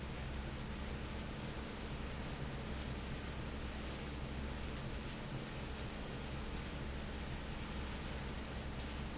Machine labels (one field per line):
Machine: fan